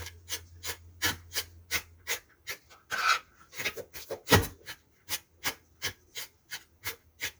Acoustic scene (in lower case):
kitchen